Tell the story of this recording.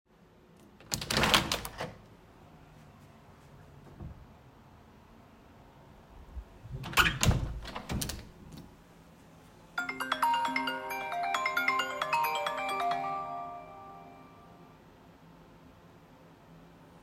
I opened and closed the window in the living room and my phone started ringing nearby.